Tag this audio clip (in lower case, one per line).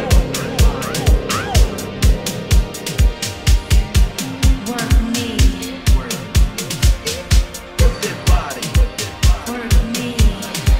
music